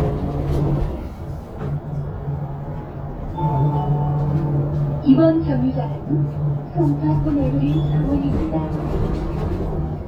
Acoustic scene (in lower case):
bus